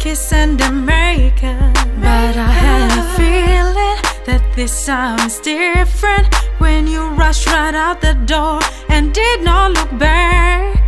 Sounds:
music, sad music

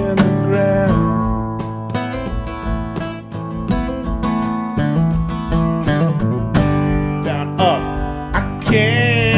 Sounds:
musical instrument, guitar, plucked string instrument, music

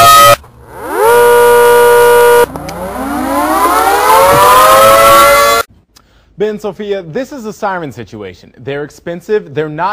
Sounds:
civil defense siren, siren

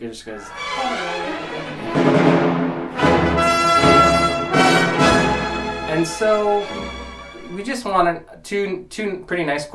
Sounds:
musical instrument, music, speech, fiddle

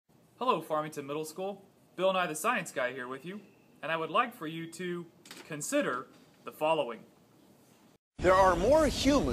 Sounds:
speech

